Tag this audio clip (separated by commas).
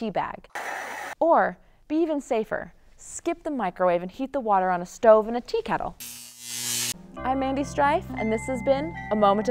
Speech, Music